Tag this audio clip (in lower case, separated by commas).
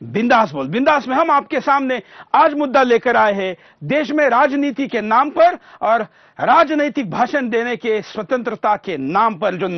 male speech, speech, monologue